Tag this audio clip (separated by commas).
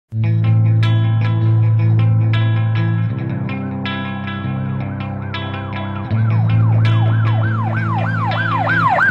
Siren, Emergency vehicle, Ambulance (siren)